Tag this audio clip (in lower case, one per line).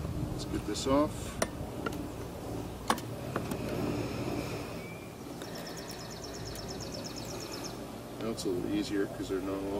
animal
speech